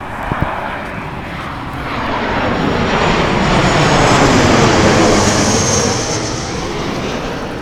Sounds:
Vehicle, Fixed-wing aircraft, Aircraft

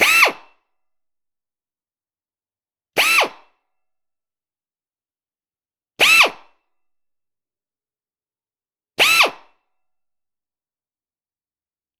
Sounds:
Drill, Power tool, Tools

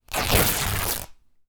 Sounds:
Tearing

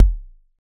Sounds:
Percussion, Musical instrument, Music, Bass drum, Drum

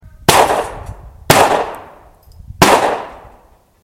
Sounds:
Explosion, Gunshot

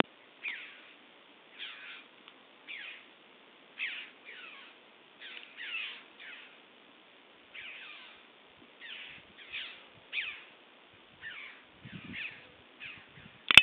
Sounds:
Bird, Animal, Bird vocalization, Wild animals

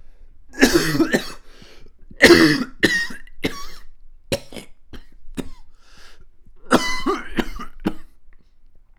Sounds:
Cough, Respiratory sounds

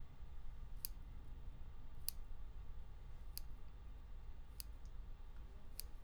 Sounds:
Clock, Mechanisms, Tick

